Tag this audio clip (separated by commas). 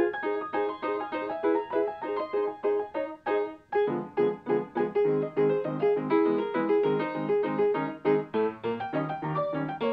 Music